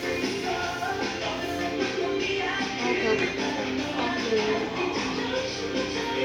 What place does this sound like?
restaurant